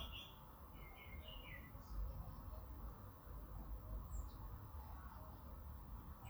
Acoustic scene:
park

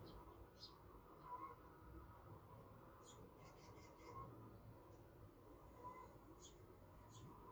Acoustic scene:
park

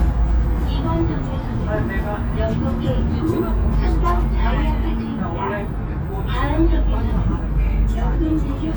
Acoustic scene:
bus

